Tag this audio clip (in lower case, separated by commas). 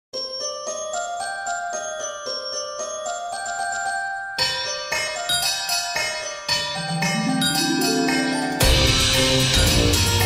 electronic music, music